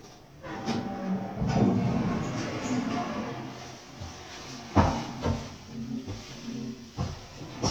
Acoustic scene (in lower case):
elevator